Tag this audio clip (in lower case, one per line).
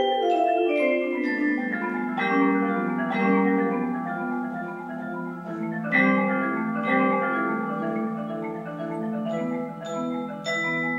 vibraphone
marimba
music
xylophone